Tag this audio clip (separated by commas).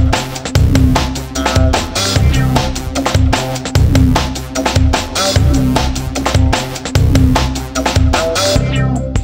Music